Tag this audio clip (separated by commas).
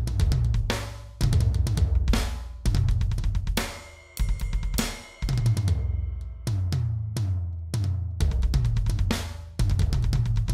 Music